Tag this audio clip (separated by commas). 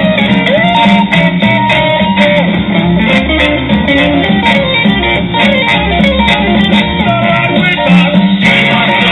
Electric guitar, Music, Musical instrument